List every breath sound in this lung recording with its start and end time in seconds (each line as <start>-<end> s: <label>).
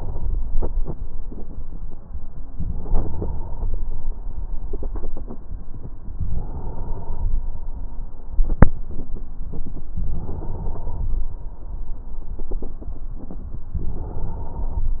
2.54-3.78 s: inhalation
6.14-7.37 s: inhalation
9.94-11.30 s: inhalation
13.79-15.00 s: inhalation